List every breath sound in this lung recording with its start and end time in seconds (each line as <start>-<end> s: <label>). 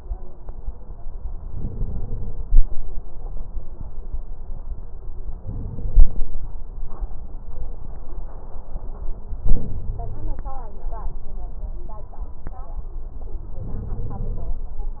1.52-2.41 s: inhalation
5.42-6.31 s: inhalation
9.48-10.37 s: inhalation
13.65-14.54 s: inhalation